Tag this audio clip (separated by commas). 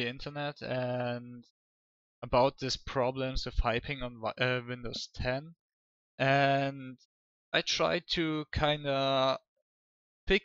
Speech